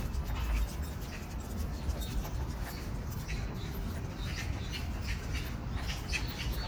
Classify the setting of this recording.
park